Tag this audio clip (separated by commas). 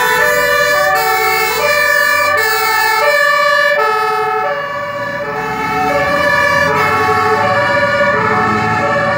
fire truck siren